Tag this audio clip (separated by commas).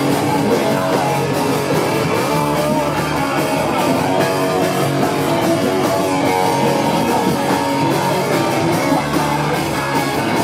Rock music, Guitar, Music